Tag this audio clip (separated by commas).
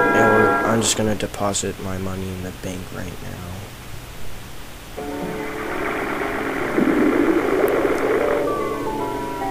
Music, Speech